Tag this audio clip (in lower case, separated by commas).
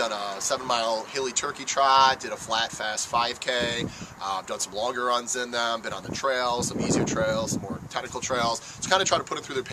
outside, urban or man-made, speech